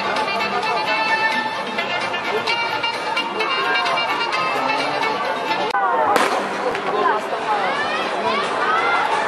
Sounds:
Speech, Music, Fireworks

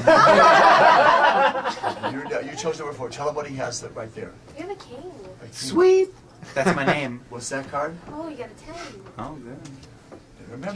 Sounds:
Speech

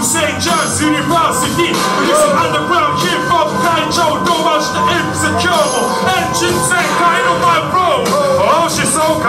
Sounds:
Music

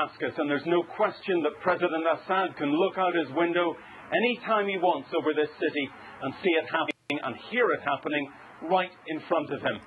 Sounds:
Speech

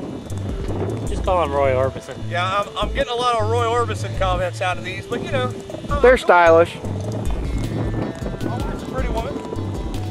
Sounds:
Speech, outside, rural or natural, Music

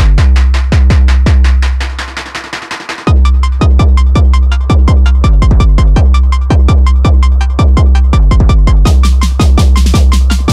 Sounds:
Music, Drum, Synthesizer, inside a small room

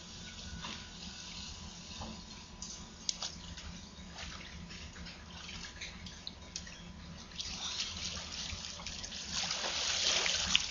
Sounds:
outside, urban or man-made

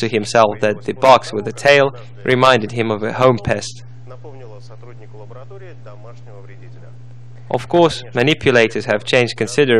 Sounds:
Speech

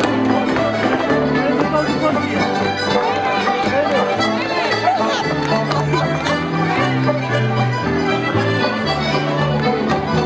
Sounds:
Music

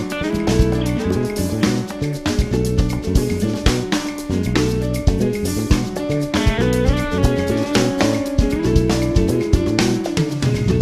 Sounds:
Hi-hat, Music

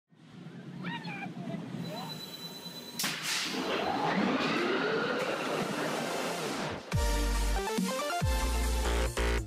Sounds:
Speech, Music

